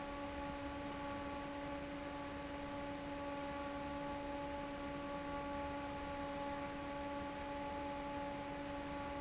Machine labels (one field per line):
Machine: fan